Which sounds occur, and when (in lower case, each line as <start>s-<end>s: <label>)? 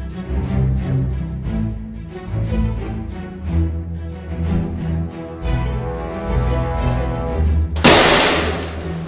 0.0s-9.0s: music
7.7s-9.0s: thwack